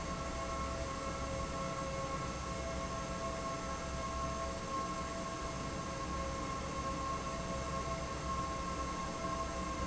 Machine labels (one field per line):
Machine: fan